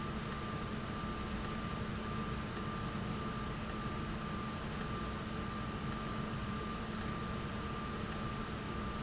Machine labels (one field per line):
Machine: valve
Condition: abnormal